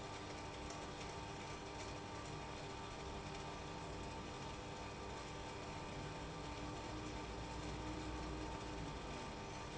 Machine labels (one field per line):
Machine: pump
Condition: abnormal